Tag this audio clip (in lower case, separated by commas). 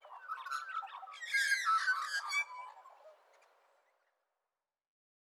animal, bird, wild animals